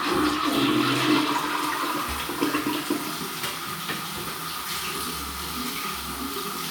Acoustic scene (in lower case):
restroom